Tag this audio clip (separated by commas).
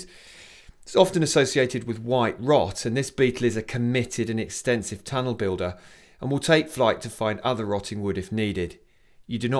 Speech